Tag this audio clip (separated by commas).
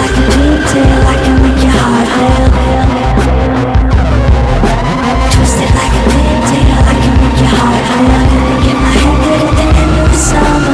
Music